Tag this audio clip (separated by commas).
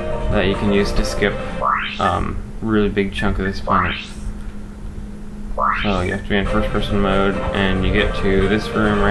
Music, Speech